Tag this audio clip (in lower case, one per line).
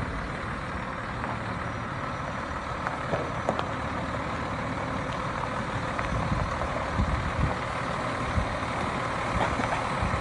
truck
vehicle